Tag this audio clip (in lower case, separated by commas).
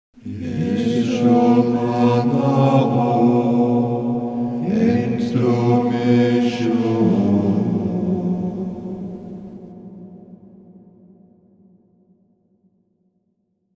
human voice, music, musical instrument, singing